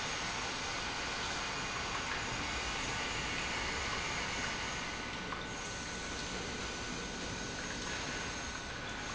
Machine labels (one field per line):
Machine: pump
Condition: normal